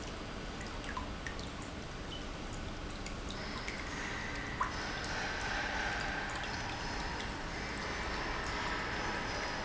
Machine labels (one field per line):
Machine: pump